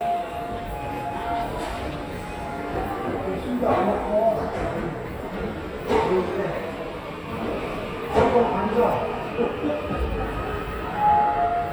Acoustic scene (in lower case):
subway station